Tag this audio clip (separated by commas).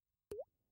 Rain, Raindrop, Water, Liquid, Drip